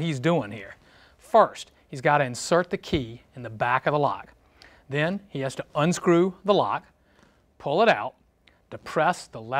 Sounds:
speech

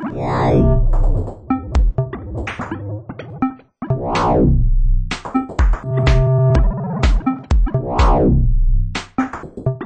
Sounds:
electronic music
synthesizer
music

